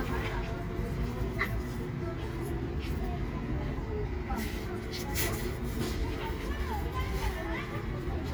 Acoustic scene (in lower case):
residential area